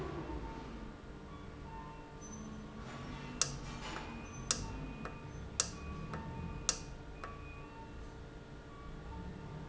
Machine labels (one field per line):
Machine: valve